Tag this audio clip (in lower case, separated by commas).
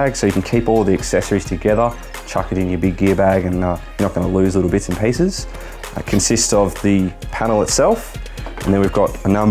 music, speech